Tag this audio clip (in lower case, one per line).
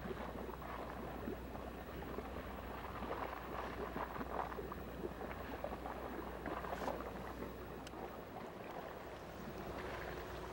boat
ship